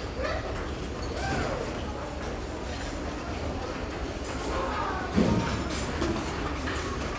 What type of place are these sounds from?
restaurant